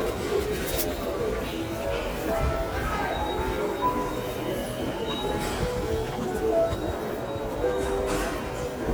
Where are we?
in a subway station